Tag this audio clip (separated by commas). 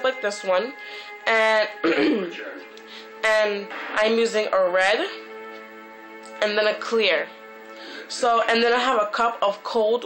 Speech, Music